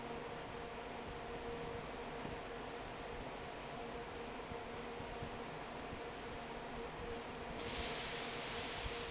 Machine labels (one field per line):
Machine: fan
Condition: normal